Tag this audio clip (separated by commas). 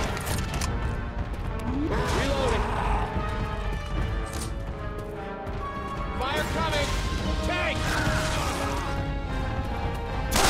Speech, Music